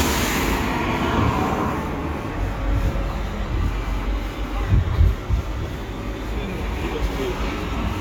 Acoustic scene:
street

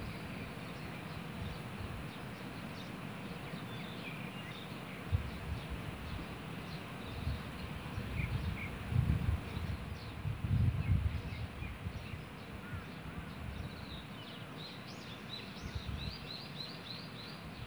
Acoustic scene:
park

